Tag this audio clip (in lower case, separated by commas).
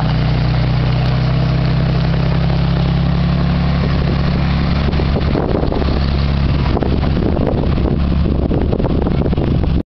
truck, vehicle